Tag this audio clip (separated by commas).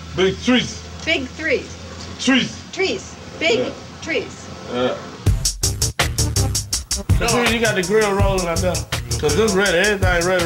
Speech, Music, inside a small room, outside, urban or man-made